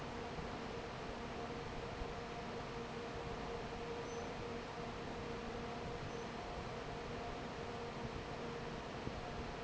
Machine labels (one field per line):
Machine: fan